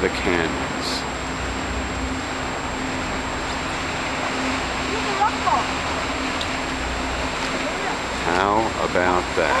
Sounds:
Speech

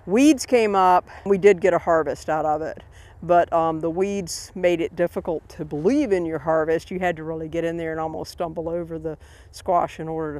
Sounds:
Speech

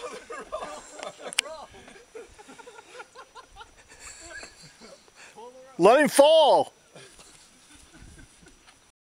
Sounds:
Speech

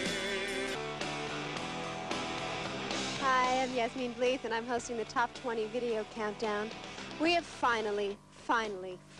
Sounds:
Music, Speech

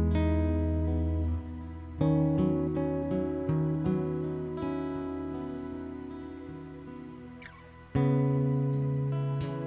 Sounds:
Music

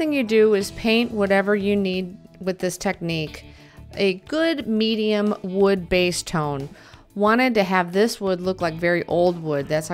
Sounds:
Music, Speech

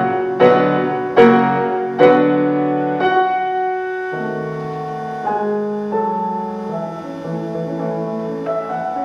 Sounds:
Music, Bowed string instrument

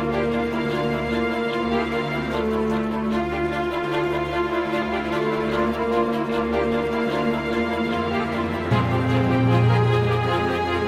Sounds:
Scary music, Music

